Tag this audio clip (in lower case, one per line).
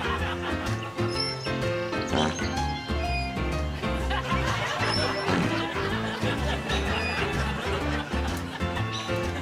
fart
music
laughter